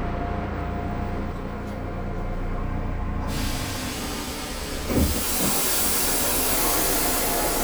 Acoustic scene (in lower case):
subway train